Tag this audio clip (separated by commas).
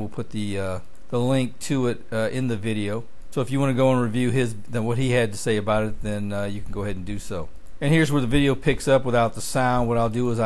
Speech